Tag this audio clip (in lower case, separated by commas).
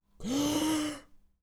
respiratory sounds, breathing